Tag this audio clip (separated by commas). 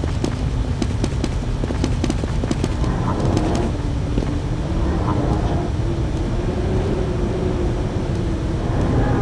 inside a large room or hall